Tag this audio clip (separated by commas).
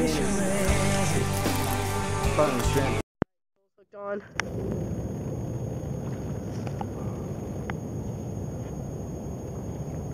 Speech, Music